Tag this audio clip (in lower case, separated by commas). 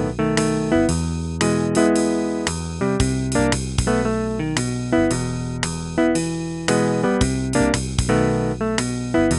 plucked string instrument, musical instrument, music, acoustic guitar, guitar, strum